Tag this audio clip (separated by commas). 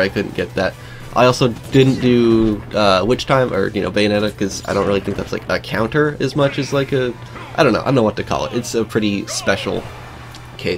Speech, Music